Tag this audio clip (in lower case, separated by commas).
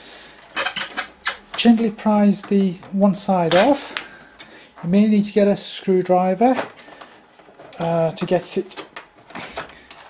inside a small room, speech